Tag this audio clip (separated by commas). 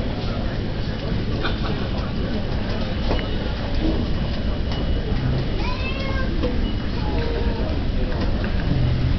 Speech